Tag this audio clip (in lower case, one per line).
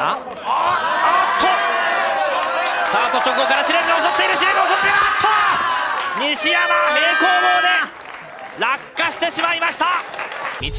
speech